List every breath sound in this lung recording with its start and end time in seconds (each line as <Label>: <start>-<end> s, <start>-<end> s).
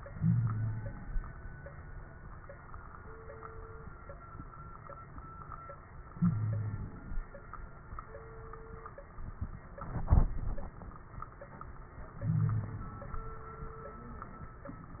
Inhalation: 0.09-1.06 s, 6.09-7.14 s, 12.14-13.06 s
Wheeze: 0.09-0.96 s, 6.13-6.93 s, 12.22-12.87 s